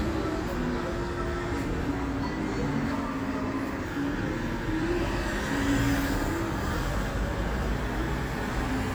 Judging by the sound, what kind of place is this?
street